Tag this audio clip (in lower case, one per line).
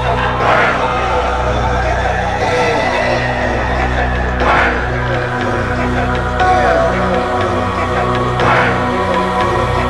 music